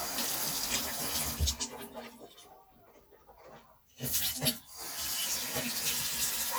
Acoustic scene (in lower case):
restroom